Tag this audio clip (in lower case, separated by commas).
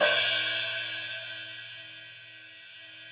music, cymbal, musical instrument, hi-hat, percussion